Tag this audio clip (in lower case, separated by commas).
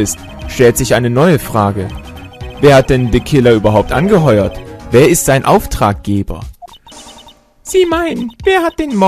speech, music